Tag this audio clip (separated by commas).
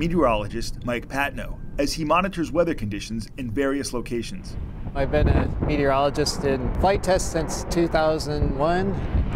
Speech